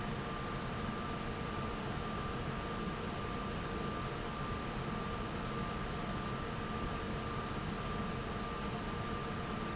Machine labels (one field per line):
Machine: fan